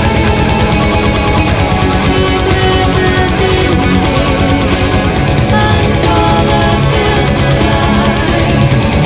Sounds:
Music

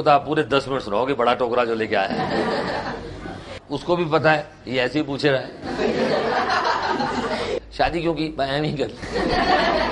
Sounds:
Chuckle, Speech

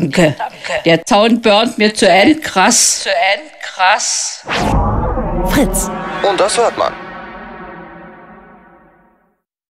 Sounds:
Speech

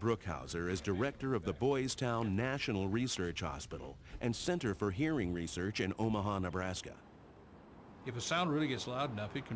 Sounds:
Speech

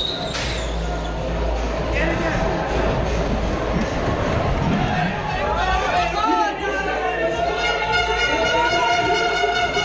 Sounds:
Speech, Music

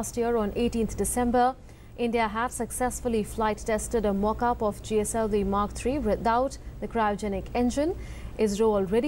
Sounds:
Speech

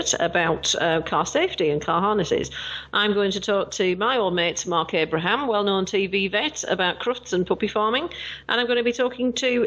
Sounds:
Speech

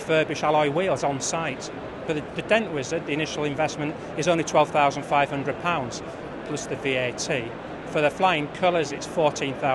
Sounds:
Speech

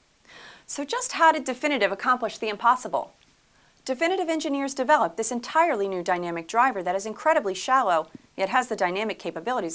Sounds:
Speech

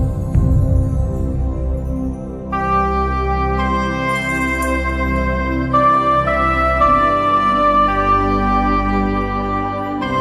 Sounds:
Music, Musical instrument

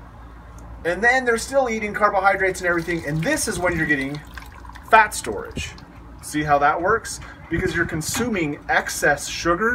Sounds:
Speech

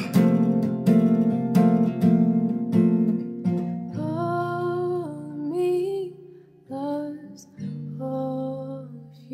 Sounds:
Singing, Acoustic guitar, Music

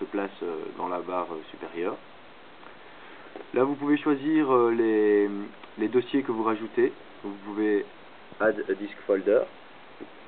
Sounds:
Speech

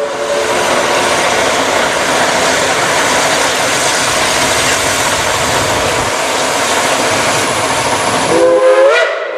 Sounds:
train wagon, Train whistle, Train, Rail transport, Clickety-clack

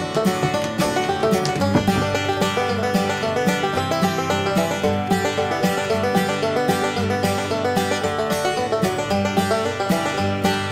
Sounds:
Music

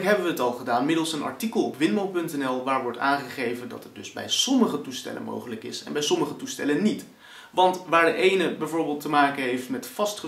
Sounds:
Speech

